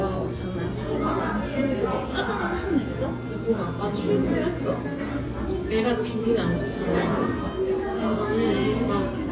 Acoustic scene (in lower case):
cafe